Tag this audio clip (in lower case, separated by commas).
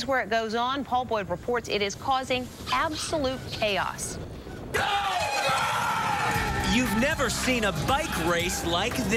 music, speech